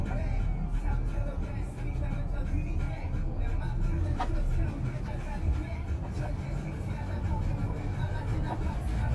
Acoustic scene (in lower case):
car